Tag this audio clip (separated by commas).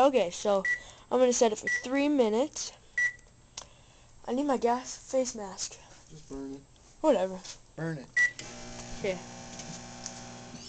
Speech, inside a small room, Microwave oven